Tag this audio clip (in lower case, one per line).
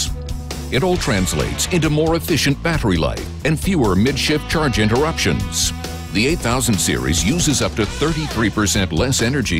speech
music